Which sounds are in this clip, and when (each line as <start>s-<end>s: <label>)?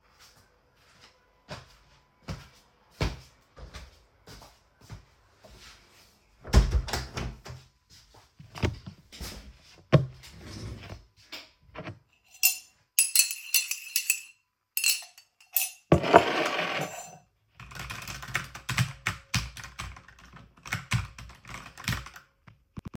0.0s-12.2s: footsteps
6.3s-7.7s: door
6.4s-7.9s: window
12.0s-17.5s: cutlery and dishes
17.4s-23.0s: keyboard typing